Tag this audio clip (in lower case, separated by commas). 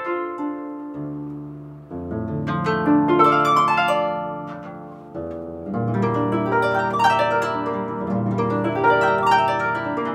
playing harp